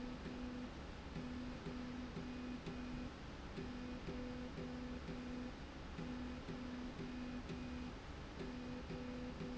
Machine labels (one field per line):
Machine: slide rail